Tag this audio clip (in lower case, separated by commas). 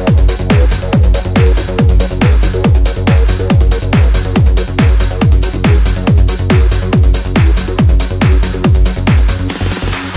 techno